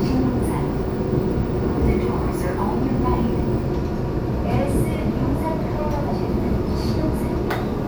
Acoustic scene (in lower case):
subway train